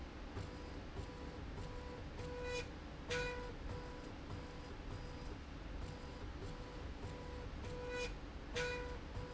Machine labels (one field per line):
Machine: slide rail